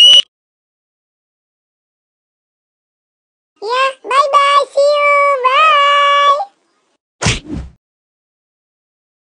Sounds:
speech

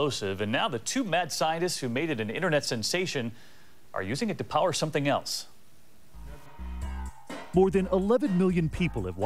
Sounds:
speech, music

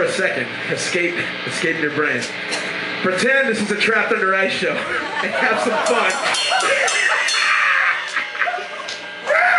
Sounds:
speech

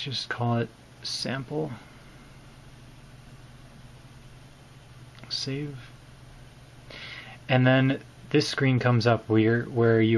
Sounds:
speech

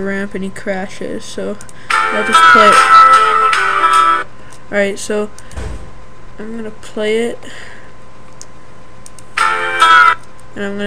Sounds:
music, speech

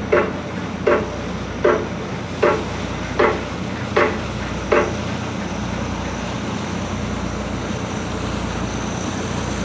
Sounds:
wind, water vehicle, ship

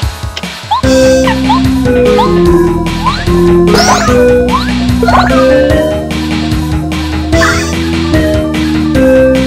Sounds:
video game music, music

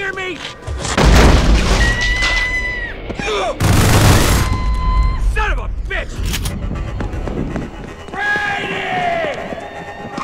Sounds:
speech, music

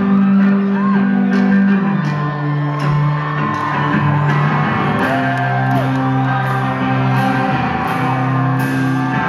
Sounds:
music

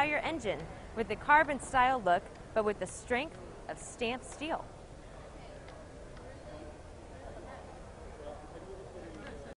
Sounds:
speech

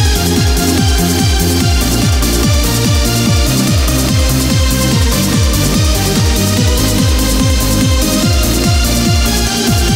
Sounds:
music, techno

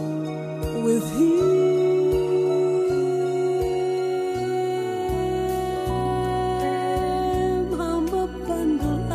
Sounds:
music, sad music

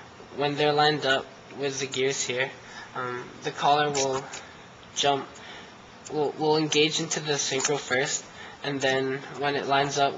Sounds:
speech, inside a small room

